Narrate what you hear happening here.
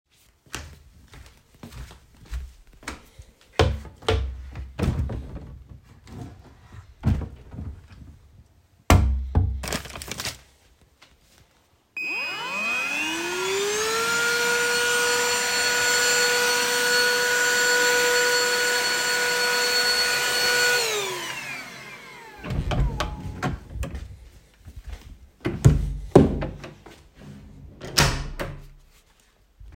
I walk to the wardrobe, open it, take the vacuum cleaner, turn it on, vacuum the littl cookie I dropped, put it back in the wardrobe.